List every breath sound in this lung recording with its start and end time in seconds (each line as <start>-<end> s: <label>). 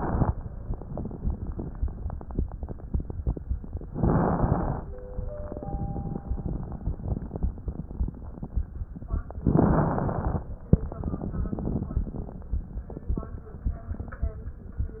3.93-4.82 s: inhalation
3.93-4.82 s: crackles
9.47-10.51 s: inhalation
9.47-10.51 s: crackles